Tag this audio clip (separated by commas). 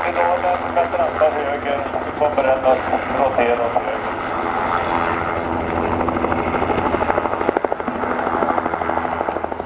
Speech